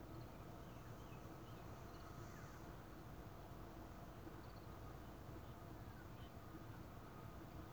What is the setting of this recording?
park